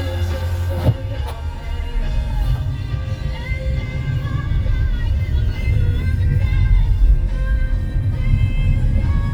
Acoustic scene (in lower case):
car